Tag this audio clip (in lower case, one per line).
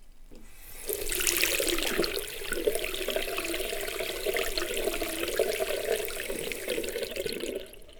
home sounds
sink (filling or washing)
water